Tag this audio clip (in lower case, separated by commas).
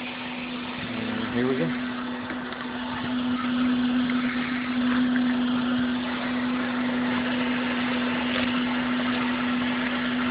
speech